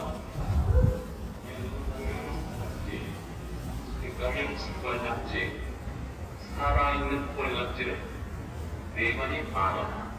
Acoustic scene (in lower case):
residential area